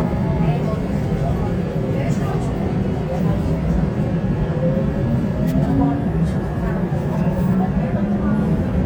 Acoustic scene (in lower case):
subway train